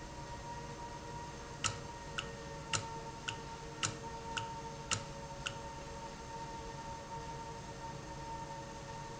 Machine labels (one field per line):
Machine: valve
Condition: normal